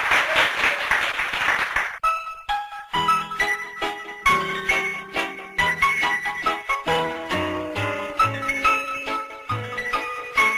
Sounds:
music

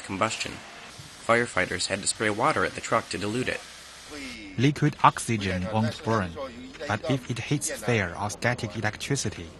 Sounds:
liquid, speech

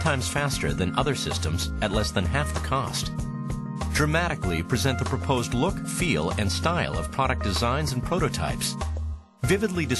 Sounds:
speech, music

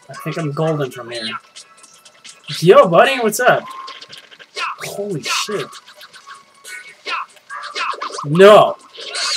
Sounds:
speech, music

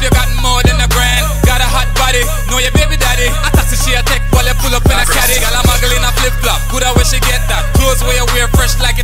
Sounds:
music

